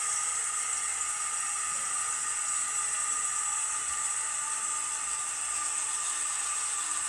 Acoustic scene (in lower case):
restroom